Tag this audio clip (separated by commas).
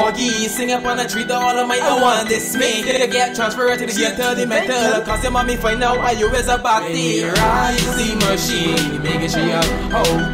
Happy music, Music